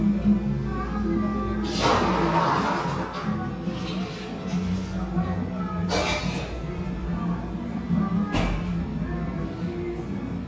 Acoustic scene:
cafe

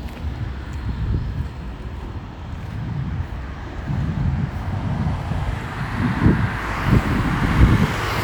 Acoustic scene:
street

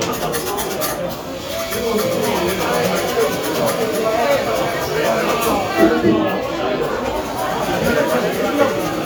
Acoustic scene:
cafe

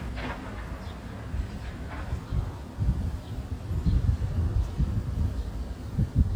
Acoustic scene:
residential area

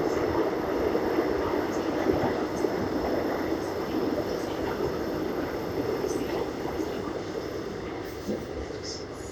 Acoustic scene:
subway train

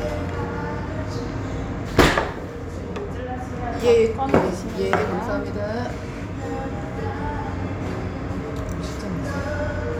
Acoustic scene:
restaurant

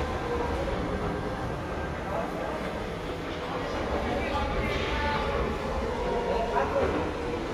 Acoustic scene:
subway station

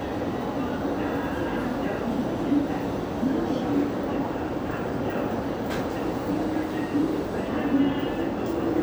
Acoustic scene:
subway station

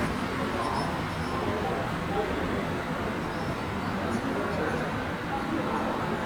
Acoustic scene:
subway station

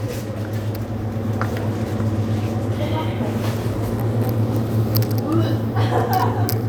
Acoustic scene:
crowded indoor space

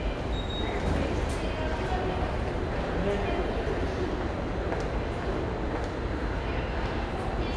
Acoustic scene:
subway station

